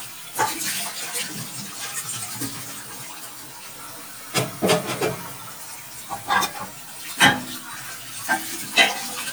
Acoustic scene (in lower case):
kitchen